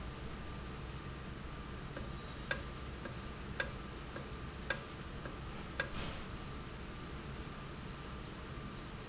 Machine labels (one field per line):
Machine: valve